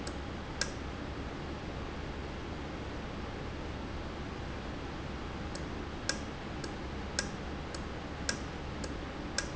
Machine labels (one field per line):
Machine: valve